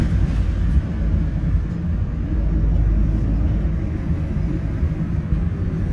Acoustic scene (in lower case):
bus